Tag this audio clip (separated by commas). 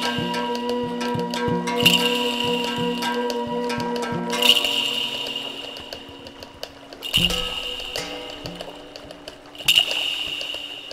Music